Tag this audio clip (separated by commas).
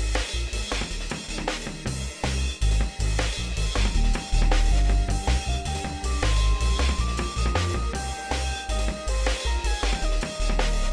Snare drum, Rimshot, Drum, Percussion, Drum kit, Bass drum